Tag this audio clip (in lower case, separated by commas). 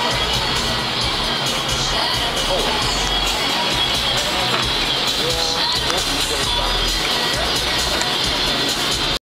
music, speech